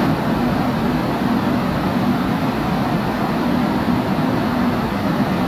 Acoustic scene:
subway station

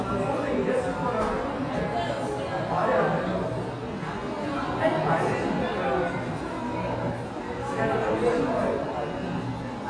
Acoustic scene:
crowded indoor space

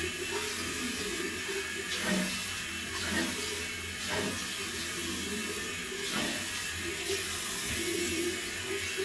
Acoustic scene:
restroom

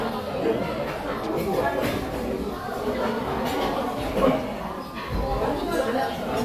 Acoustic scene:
crowded indoor space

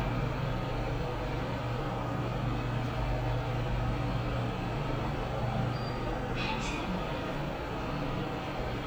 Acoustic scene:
elevator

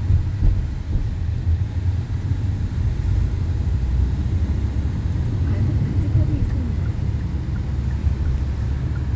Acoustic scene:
car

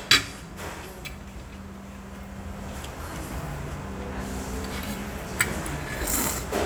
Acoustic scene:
restaurant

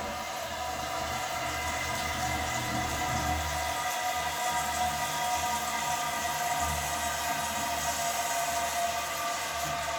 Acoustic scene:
restroom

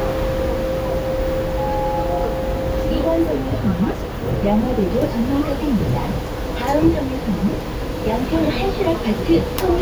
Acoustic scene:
bus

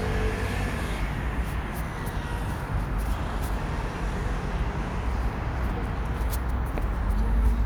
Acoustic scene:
residential area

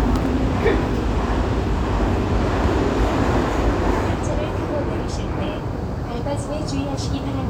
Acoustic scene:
subway train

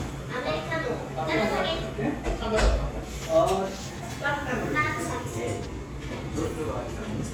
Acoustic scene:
cafe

